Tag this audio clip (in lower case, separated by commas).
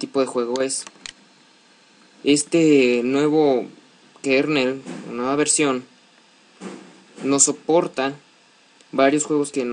chop, speech